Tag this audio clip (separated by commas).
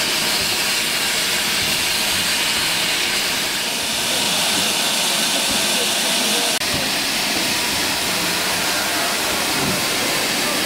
outside, urban or man-made, Steam, Vehicle, Train, Rail transport